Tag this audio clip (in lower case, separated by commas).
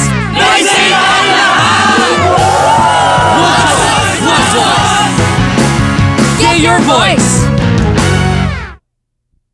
music, speech